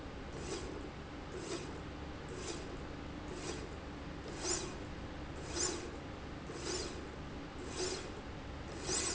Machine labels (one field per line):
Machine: slide rail